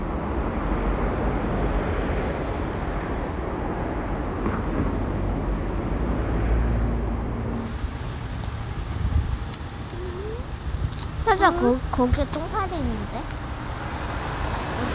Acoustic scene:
street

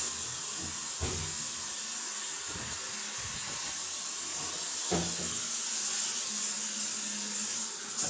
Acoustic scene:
restroom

